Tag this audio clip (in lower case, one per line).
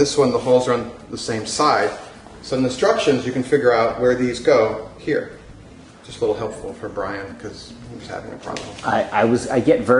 speech